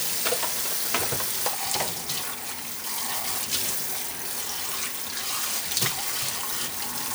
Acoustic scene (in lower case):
kitchen